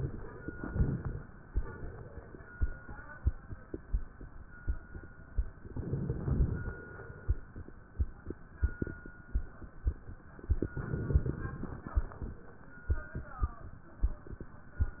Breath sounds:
0.00-1.20 s: inhalation
0.38-1.20 s: crackles
1.48-2.68 s: exhalation
5.55-6.61 s: inhalation
5.75-6.67 s: crackles
6.61-7.67 s: exhalation
10.39-11.59 s: inhalation
10.59-11.52 s: crackles
11.59-12.64 s: exhalation

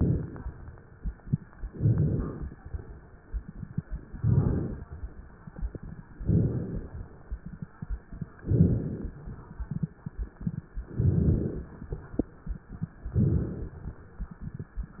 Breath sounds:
0.00-0.46 s: inhalation
0.00-0.46 s: crackles
1.71-2.54 s: inhalation
1.71-2.54 s: crackles
4.12-4.82 s: inhalation
4.12-4.82 s: crackles
6.18-6.89 s: inhalation
6.18-6.89 s: crackles
8.46-9.17 s: inhalation
8.46-9.17 s: crackles
10.93-11.67 s: inhalation
10.93-11.67 s: crackles
13.11-13.85 s: inhalation
13.11-13.85 s: crackles

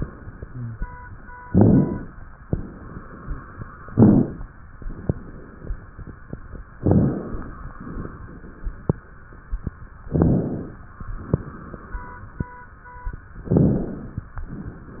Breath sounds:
1.42-2.13 s: inhalation
1.42-2.13 s: crackles
3.87-4.44 s: inhalation
3.87-4.44 s: crackles
6.85-7.65 s: inhalation
6.85-7.65 s: crackles
10.06-10.85 s: inhalation
10.06-10.85 s: crackles
13.45-14.25 s: inhalation
13.45-14.25 s: crackles

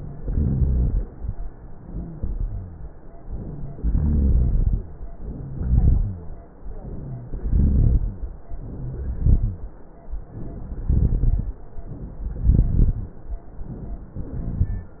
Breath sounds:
0.10-1.01 s: inhalation
0.10-1.01 s: rhonchi
3.78-4.82 s: exhalation
3.78-4.82 s: rhonchi
5.29-6.34 s: rhonchi
5.31-6.36 s: inhalation
6.74-7.36 s: inhalation
7.36-8.23 s: exhalation
7.36-8.23 s: rhonchi
8.48-9.20 s: inhalation
9.20-9.73 s: exhalation
9.20-9.73 s: rhonchi
10.15-10.87 s: inhalation
10.87-11.57 s: exhalation
10.87-11.57 s: rhonchi
11.90-12.52 s: inhalation
12.48-13.17 s: crackles
12.52-13.17 s: exhalation

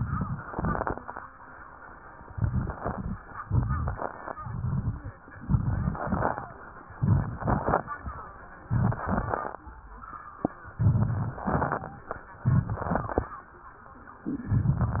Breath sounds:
0.00-0.46 s: inhalation
0.47-0.93 s: crackles
0.49-0.95 s: exhalation
2.29-2.75 s: inhalation
2.30-2.73 s: crackles
2.81-3.24 s: crackles
2.83-3.28 s: exhalation
3.42-3.98 s: inhalation
3.42-3.98 s: crackles
4.40-5.10 s: exhalation
4.40-5.10 s: crackles
5.41-6.01 s: inhalation
5.41-6.01 s: crackles
6.02-6.62 s: exhalation
6.02-6.62 s: crackles
6.98-7.44 s: inhalation
6.98-7.44 s: crackles
7.48-7.93 s: exhalation
7.48-7.93 s: crackles
8.60-9.05 s: inhalation
8.60-9.05 s: crackles
9.07-9.66 s: exhalation
9.07-9.66 s: crackles
10.82-11.40 s: inhalation
10.82-11.40 s: crackles
11.46-12.05 s: exhalation
11.46-12.05 s: crackles
12.45-13.34 s: inhalation
12.45-13.34 s: crackles
14.33-15.00 s: exhalation
14.33-15.00 s: crackles

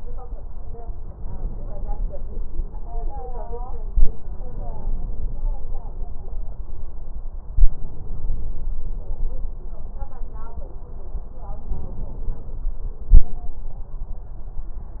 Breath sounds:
1.12-2.42 s: inhalation
4.32-5.62 s: inhalation
7.56-8.74 s: inhalation
11.58-12.77 s: inhalation

